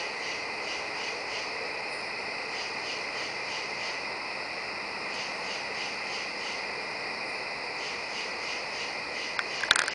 Crickets chirping followed by a crackling